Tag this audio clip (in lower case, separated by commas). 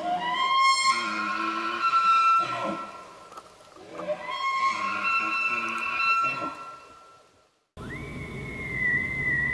elk bugling